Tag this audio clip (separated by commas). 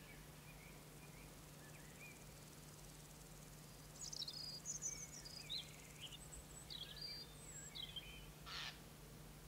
Environmental noise